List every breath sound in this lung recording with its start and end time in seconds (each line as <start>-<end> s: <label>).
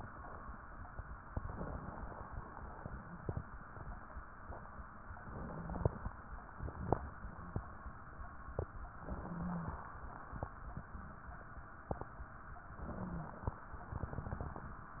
1.25-2.31 s: inhalation
1.25-2.31 s: crackles
5.04-6.11 s: inhalation
5.04-6.11 s: crackles
5.40-5.88 s: wheeze
8.89-9.74 s: inhalation
8.89-9.74 s: crackles
9.22-9.70 s: wheeze
12.75-13.59 s: inhalation
12.87-13.43 s: wheeze